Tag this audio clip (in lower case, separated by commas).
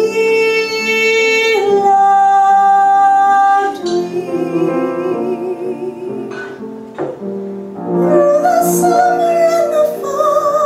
singing, music, inside a large room or hall